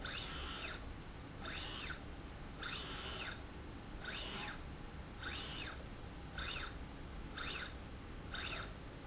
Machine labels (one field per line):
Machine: slide rail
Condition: normal